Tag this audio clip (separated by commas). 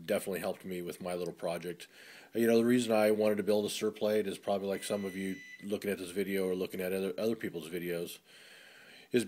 Speech